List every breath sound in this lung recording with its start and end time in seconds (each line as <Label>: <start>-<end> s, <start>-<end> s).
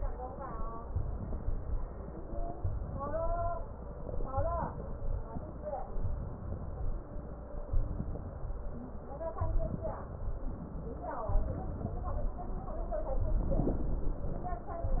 Wheeze: 8.69-8.99 s